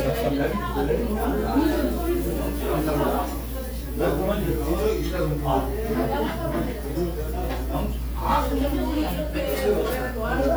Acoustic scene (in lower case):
crowded indoor space